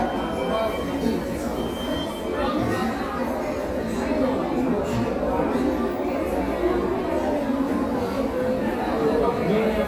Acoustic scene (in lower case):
crowded indoor space